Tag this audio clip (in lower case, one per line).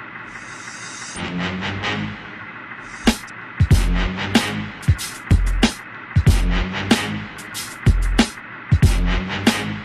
music
rustle